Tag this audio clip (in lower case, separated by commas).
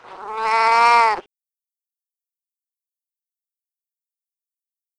domestic animals, meow, cat, animal